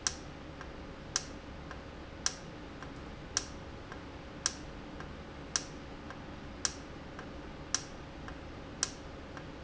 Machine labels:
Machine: valve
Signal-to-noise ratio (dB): 0 dB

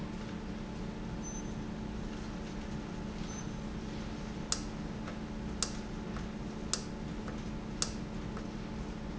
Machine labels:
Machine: valve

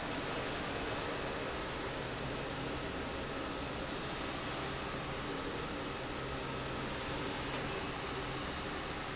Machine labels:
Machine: pump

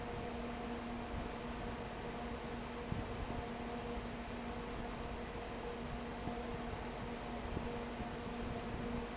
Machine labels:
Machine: fan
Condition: abnormal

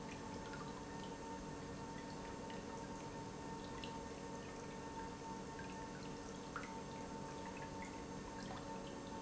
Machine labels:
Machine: pump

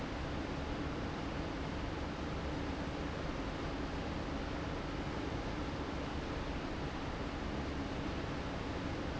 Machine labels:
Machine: fan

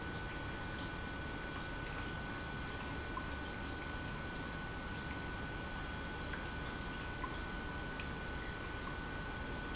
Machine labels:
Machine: pump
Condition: normal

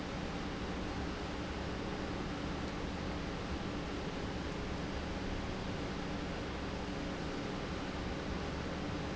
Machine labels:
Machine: pump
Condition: normal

